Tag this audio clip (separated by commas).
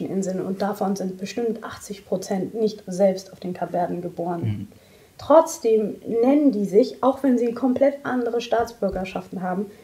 Speech